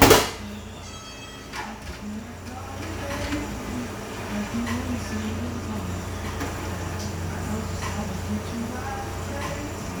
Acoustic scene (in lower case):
cafe